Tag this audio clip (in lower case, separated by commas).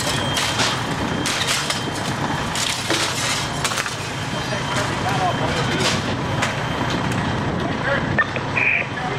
speech, fire alarm